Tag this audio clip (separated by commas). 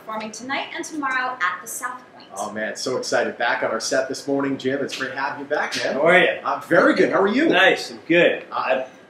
Speech